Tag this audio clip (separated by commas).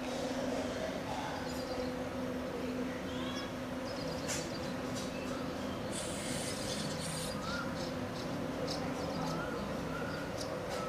barn swallow calling